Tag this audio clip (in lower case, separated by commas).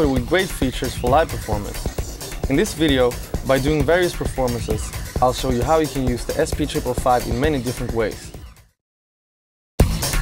music, speech